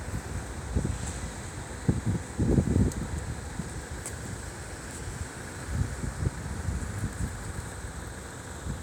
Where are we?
on a street